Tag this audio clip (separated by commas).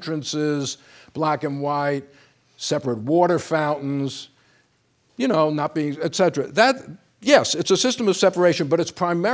Speech